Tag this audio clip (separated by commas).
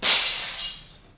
Glass, Shatter